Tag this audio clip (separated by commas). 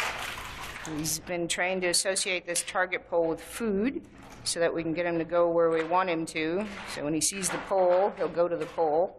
Speech